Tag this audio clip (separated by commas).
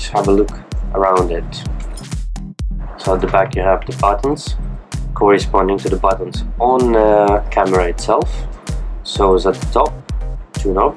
Speech, Music